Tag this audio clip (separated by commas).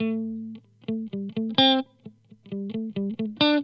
Guitar, Plucked string instrument, Electric guitar, Music, Musical instrument